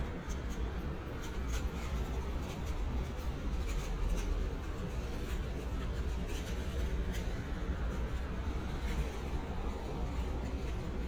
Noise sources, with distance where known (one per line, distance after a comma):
non-machinery impact